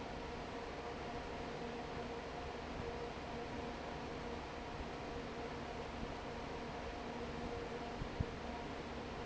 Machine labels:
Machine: fan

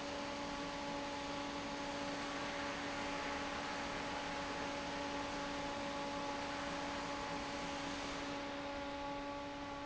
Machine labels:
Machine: fan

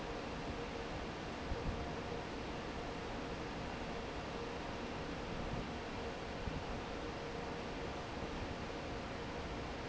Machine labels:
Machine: fan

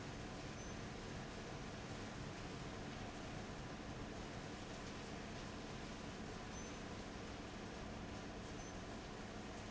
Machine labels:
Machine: fan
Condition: abnormal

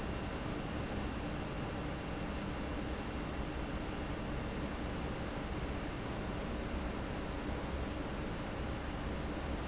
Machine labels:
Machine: fan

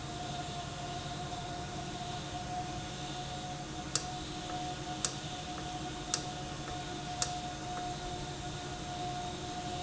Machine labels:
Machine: valve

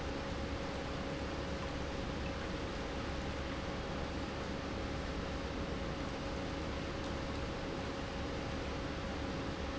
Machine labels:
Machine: pump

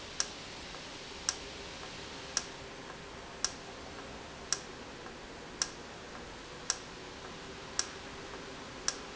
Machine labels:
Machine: valve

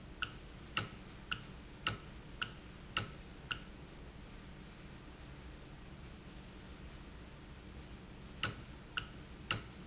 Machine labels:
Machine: valve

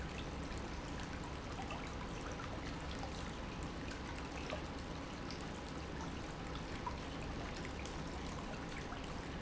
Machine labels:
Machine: pump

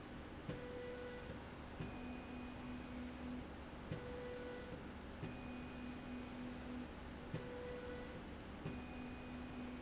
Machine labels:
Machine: slide rail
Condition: normal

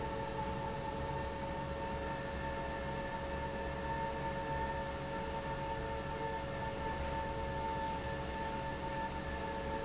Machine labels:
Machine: fan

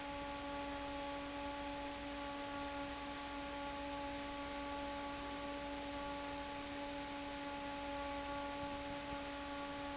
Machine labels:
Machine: fan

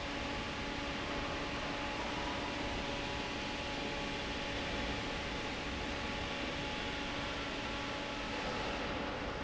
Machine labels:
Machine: fan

